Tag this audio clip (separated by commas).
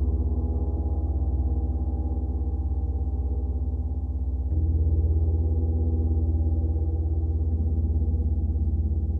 playing gong